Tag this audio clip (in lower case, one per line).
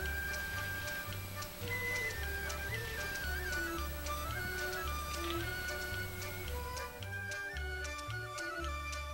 music